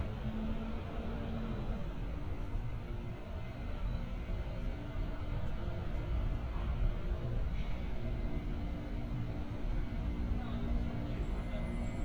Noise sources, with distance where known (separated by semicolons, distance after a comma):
engine of unclear size, far